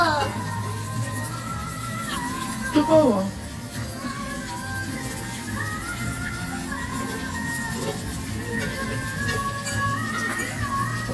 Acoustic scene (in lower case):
restaurant